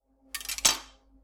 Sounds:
silverware, Domestic sounds

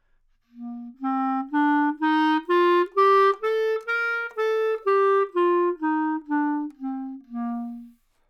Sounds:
Music, Musical instrument, woodwind instrument

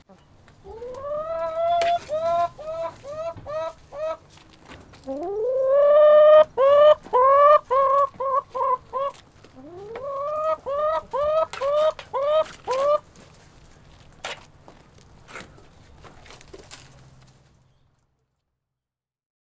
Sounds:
Animal, rooster, livestock, Fowl

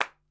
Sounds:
Clapping, Hands

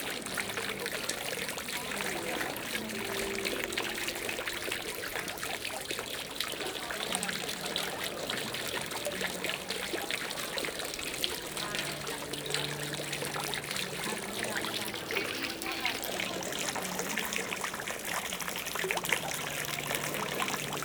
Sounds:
Water

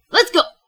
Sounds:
Speech, woman speaking, Human voice

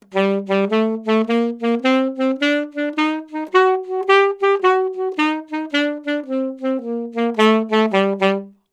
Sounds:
Music, Musical instrument, Wind instrument

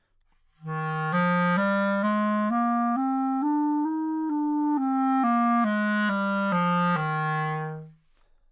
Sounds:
Music, woodwind instrument, Musical instrument

